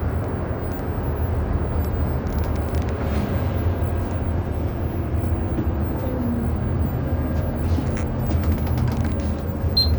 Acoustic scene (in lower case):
bus